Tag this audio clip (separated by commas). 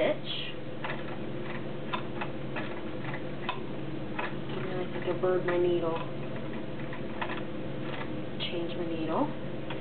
Speech, Sewing machine